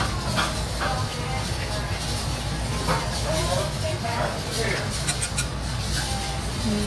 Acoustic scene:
restaurant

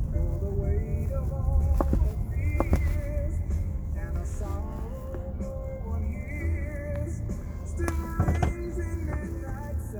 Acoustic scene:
car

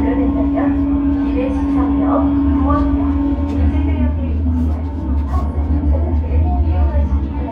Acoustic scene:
subway train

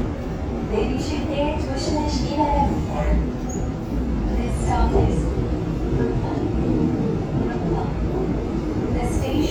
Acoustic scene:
subway train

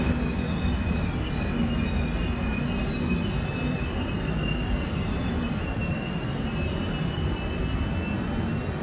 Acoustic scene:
subway train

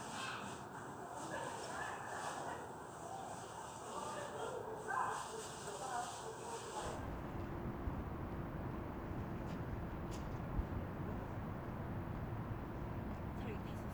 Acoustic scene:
residential area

